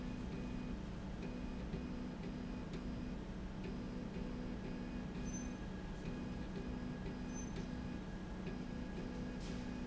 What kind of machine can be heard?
slide rail